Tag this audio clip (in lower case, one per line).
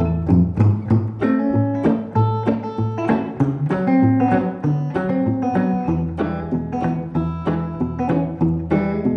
music